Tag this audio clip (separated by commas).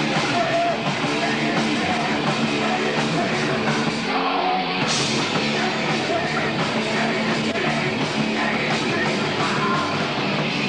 Music